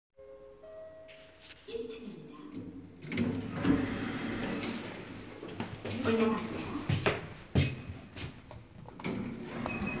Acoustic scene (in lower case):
elevator